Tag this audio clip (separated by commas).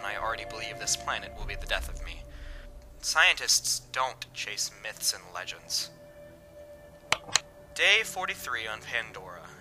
Speech, Music